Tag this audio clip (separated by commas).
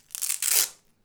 Domestic sounds